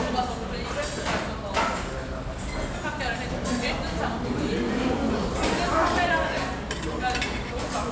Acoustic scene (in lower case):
restaurant